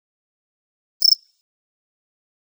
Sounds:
Cricket, Wild animals, Insect, Animal

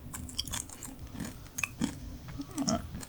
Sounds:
mastication

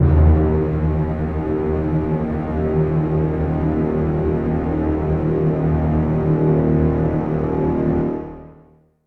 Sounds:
Musical instrument, Music

